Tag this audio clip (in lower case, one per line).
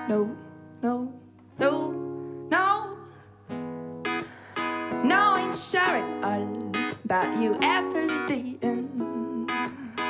music
independent music